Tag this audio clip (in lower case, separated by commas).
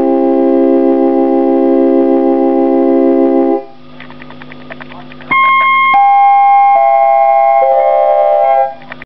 sampler, music, harpsichord